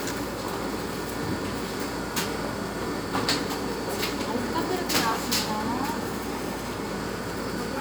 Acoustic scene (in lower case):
cafe